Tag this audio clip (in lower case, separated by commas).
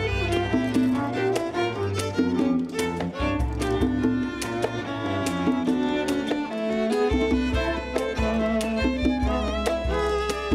music, fiddle, musical instrument